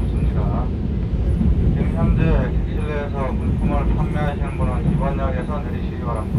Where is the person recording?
on a subway train